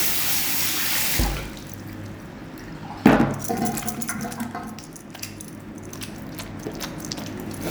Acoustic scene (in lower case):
restroom